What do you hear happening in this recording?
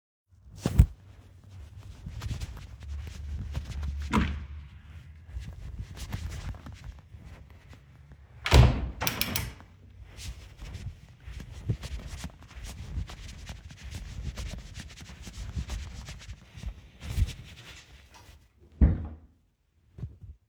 I walked up to a door, opened it, walked through and closed it, then I walked towards another door and opened it